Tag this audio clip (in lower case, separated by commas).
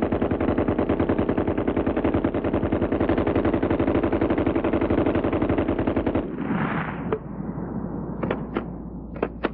machine gun